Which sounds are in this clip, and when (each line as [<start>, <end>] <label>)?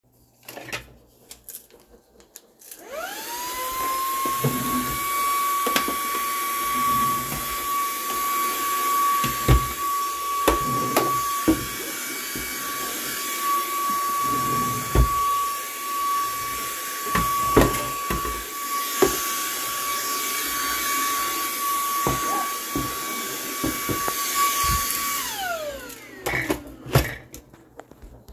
[2.56, 26.12] vacuum cleaner
[4.33, 6.19] wardrobe or drawer
[6.69, 9.84] wardrobe or drawer
[10.37, 11.76] wardrobe or drawer
[14.29, 15.18] wardrobe or drawer
[17.05, 18.55] wardrobe or drawer
[26.24, 27.27] wardrobe or drawer